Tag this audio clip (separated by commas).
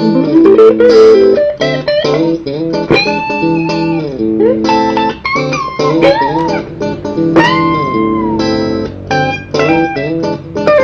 Music